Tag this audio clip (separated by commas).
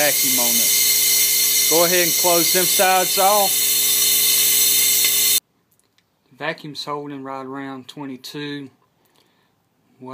Speech